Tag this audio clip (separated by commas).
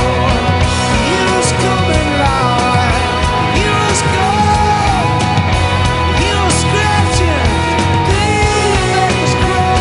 Music